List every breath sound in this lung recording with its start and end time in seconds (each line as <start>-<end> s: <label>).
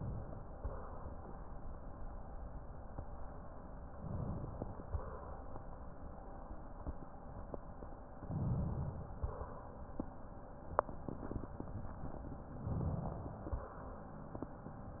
3.91-4.88 s: inhalation
3.91-4.88 s: crackles
4.86-5.65 s: exhalation
8.23-9.18 s: inhalation
9.18-9.90 s: exhalation
12.62-13.47 s: inhalation
13.47-14.23 s: exhalation